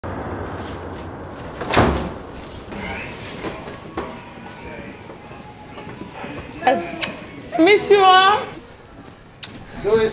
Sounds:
inside a large room or hall, Music, Slam, Speech

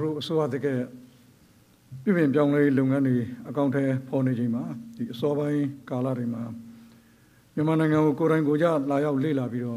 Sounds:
monologue, Male speech, Speech

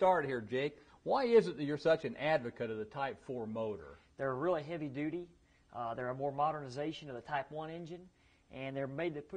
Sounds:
Speech

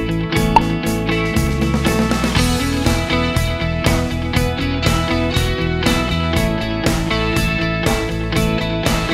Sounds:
Music

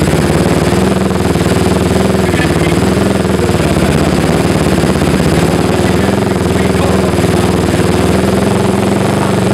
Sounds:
Speech, Helicopter

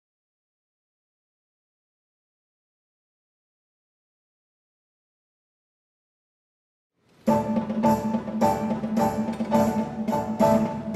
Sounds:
Pizzicato

